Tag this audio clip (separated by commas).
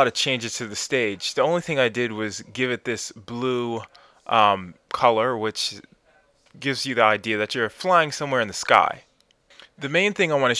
Speech